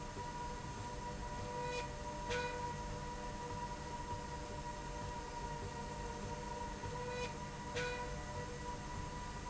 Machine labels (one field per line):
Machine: slide rail